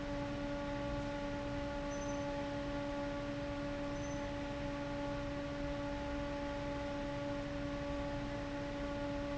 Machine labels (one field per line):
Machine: fan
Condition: abnormal